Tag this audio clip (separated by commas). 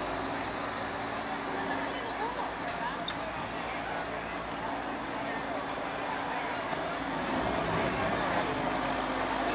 speedboat, Boat, Speech